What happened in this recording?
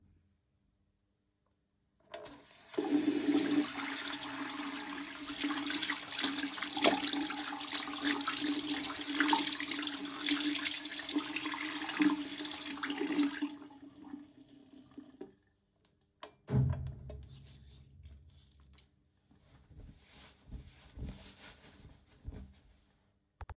i turned on the water in the sink and washed my hands. after finishing i turned off the water and dried my hands with a towel.